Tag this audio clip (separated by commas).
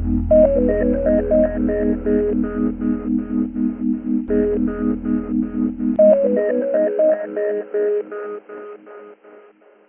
Music, outside, urban or man-made